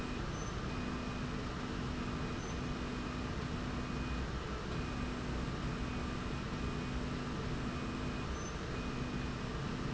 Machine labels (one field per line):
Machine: slide rail